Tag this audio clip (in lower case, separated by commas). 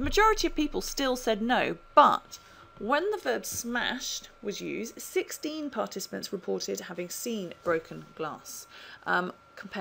monologue